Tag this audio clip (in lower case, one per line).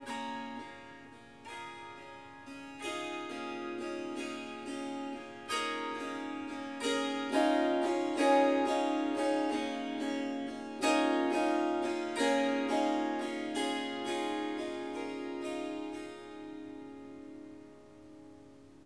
musical instrument
music
harp